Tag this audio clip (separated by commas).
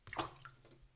Splash, Liquid, Water